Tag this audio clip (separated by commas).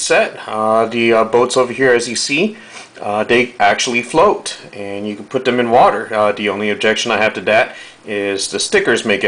Speech